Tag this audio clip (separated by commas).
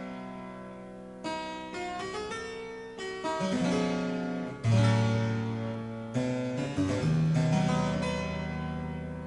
Music, Harpsichord